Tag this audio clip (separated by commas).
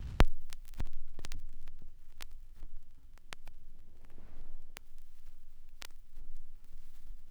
Crackle